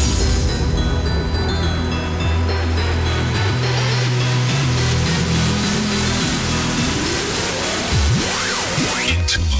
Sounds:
Music, Pop music

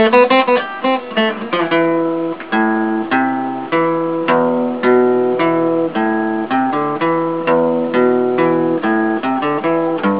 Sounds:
Guitar, Plucked string instrument, Music, Strum, Musical instrument

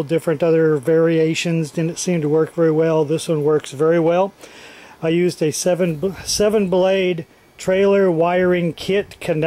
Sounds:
Speech

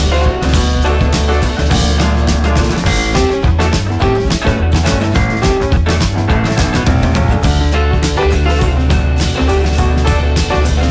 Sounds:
Music

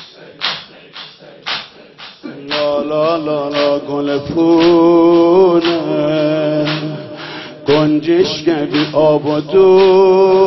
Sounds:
Music

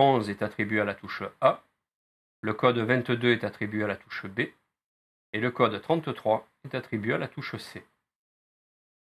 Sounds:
Speech

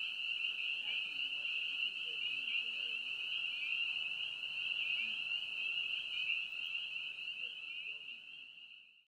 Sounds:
outside, rural or natural

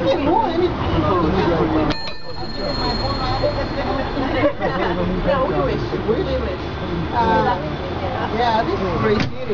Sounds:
Vehicle, Speech

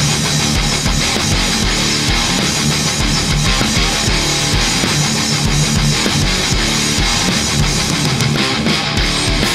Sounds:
Guitar, Musical instrument, playing electric guitar, Plucked string instrument, Electric guitar, Music

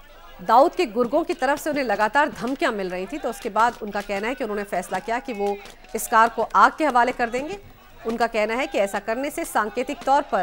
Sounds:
Speech

